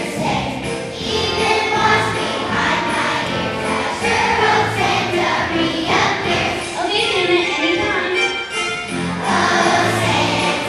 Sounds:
Child singing, Choir, Female singing, Music

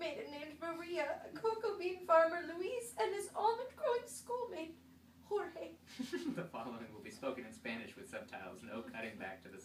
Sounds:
Speech

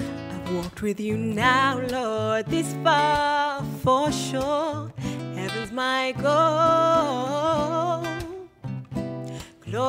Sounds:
Music

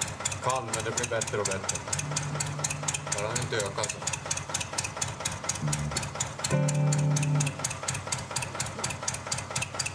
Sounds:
Speech, Music

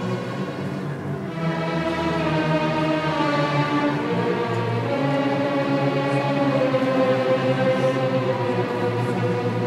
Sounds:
Music

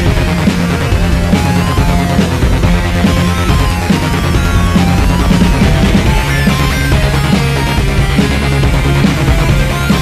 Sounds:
Music

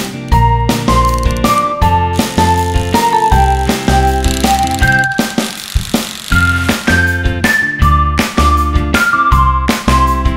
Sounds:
Music

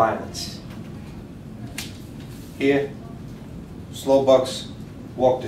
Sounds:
Speech

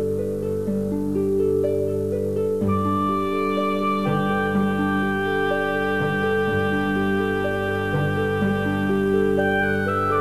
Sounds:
Music, outside, rural or natural

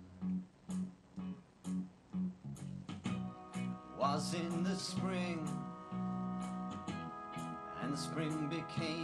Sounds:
Music, Male singing

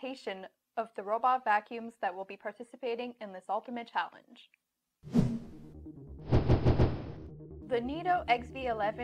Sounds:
Music, Speech

